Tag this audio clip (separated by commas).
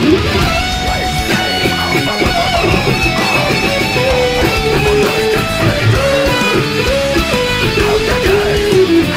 Plucked string instrument, Musical instrument, Music